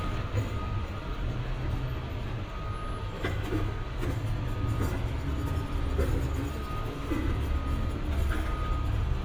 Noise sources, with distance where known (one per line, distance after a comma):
non-machinery impact
reverse beeper, far